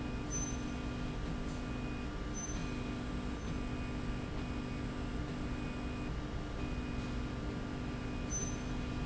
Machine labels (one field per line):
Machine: slide rail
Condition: normal